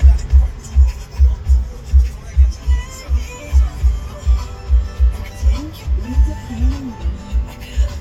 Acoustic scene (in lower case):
car